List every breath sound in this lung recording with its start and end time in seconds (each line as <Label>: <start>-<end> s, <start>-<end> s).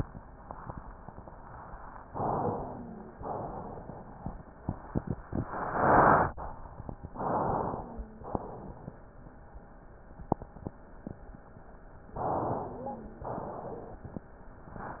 Inhalation: 2.05-3.13 s, 7.17-7.99 s, 12.12-13.24 s
Exhalation: 3.21-4.33 s, 8.29-9.11 s, 13.24-14.06 s
Wheeze: 2.43-3.25 s, 7.70-8.26 s, 12.58-13.40 s